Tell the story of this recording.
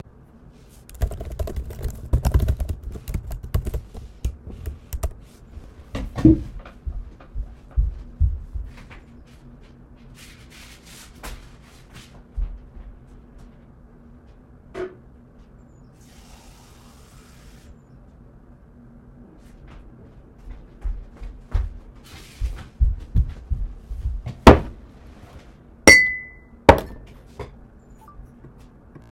I worked on my laptop. I wend to the kitchen for a glass of water.